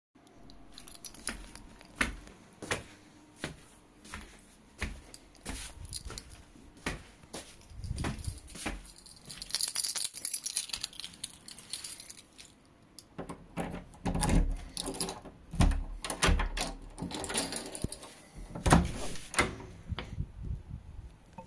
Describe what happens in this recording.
Going outside of my room, and unluckoing the door before I open them and walk out